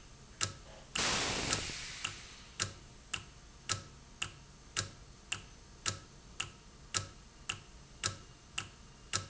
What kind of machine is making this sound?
valve